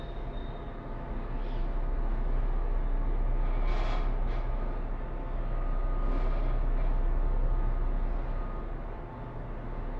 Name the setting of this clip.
elevator